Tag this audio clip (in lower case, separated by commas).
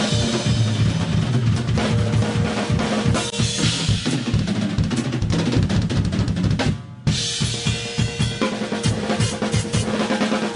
playing bass drum